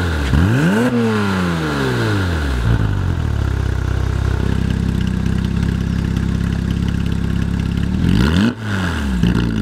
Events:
0.0s-9.6s: car
0.0s-9.6s: video game sound
0.0s-2.8s: revving
8.0s-9.3s: revving

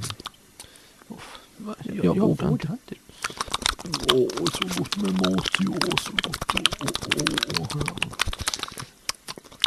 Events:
0.0s-0.3s: human sounds
0.0s-9.6s: mechanisms
0.5s-1.0s: breathing
1.1s-1.4s: male speech
1.3s-1.4s: tick
1.6s-3.0s: male speech
3.1s-3.7s: breathing
3.1s-9.6s: human sounds
3.8s-8.2s: male speech
8.3s-8.9s: breathing

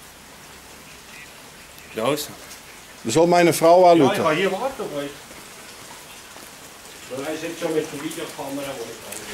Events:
0.0s-9.3s: water
0.0s-9.3s: wind
1.1s-9.0s: conversation
1.1s-1.3s: male speech
1.9s-2.3s: male speech
3.1s-5.2s: male speech
7.2s-9.0s: male speech

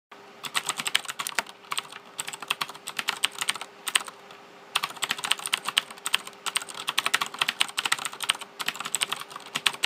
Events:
0.0s-9.8s: mechanisms
0.4s-1.5s: typing
1.6s-3.6s: typing
3.8s-4.1s: typing
4.2s-4.3s: tick
4.7s-8.4s: typing
8.6s-9.8s: typing

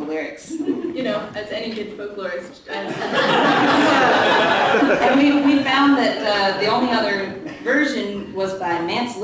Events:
0.0s-0.6s: male speech
0.0s-9.2s: background noise
0.0s-9.2s: conversation
0.6s-0.9s: laughter
0.9s-2.5s: female speech
1.6s-1.9s: single-lens reflex camera
2.6s-2.9s: female speech
2.8s-5.5s: laughter
2.8s-5.6s: crowd
5.1s-6.7s: female speech

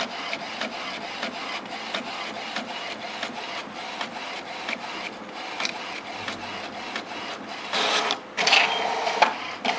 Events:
0.0s-9.7s: printer

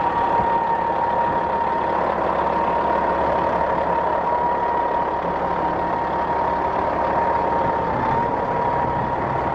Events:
0.0s-9.5s: heavy engine (low frequency)

